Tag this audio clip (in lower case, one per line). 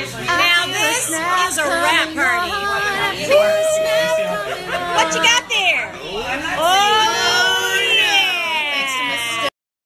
speech